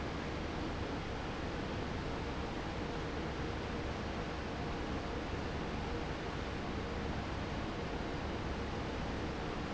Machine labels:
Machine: fan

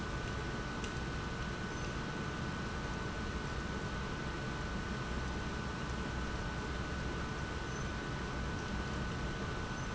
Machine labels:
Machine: pump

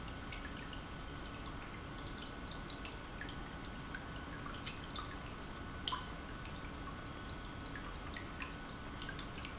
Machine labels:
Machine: pump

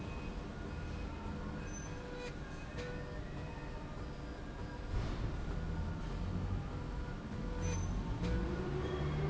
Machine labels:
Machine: slide rail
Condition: normal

